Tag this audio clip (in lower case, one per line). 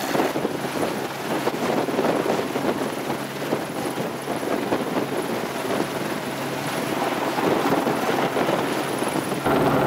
helicopter
vehicle